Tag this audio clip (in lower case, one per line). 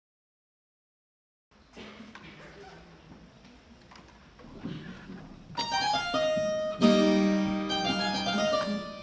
playing harpsichord